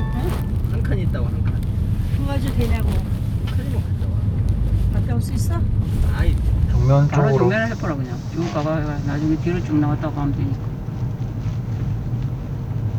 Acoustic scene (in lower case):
car